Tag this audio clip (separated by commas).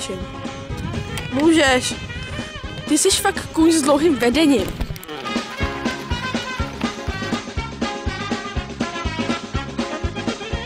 Clip-clop, Speech, Music